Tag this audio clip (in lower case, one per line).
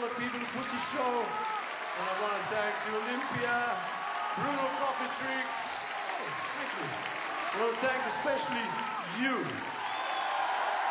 man speaking
speech
monologue